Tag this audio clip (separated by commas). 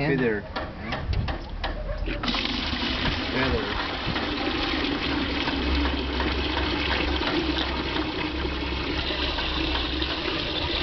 Sink (filling or washing), Water